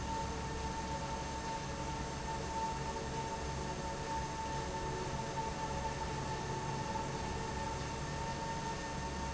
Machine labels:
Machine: fan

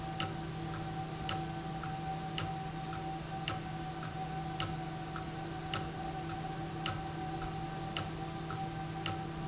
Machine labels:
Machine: valve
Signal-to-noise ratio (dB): -6 dB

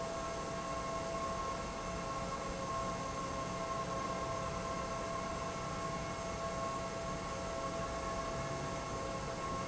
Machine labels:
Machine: pump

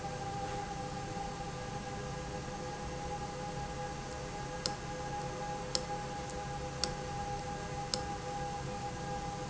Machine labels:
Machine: valve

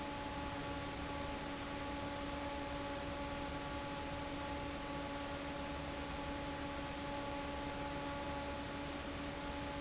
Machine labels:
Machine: fan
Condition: normal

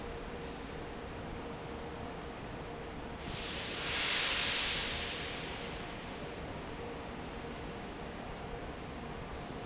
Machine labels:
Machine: fan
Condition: normal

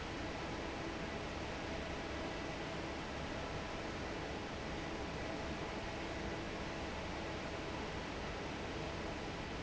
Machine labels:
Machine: fan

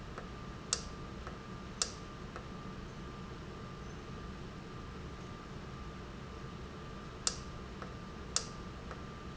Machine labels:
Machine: valve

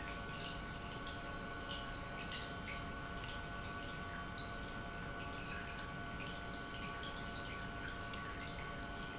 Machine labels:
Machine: pump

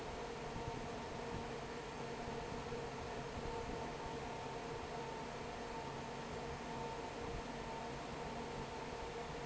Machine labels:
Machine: fan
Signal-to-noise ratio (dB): 6 dB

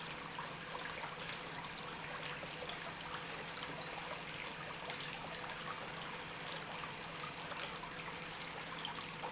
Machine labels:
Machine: pump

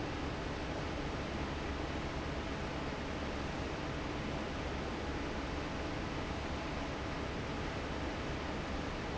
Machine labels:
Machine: fan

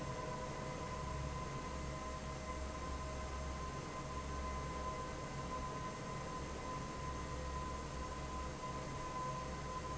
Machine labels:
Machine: fan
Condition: normal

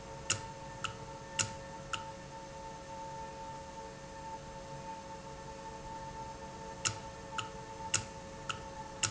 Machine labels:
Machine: valve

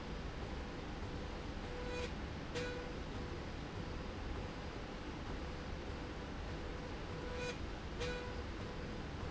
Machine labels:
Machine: slide rail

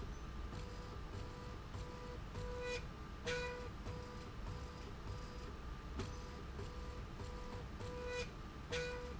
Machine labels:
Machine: slide rail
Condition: normal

